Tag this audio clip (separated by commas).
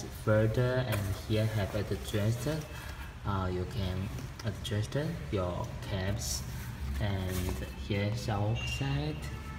Speech